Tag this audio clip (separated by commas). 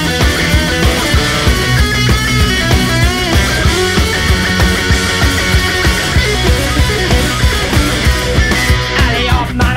Music, Heavy metal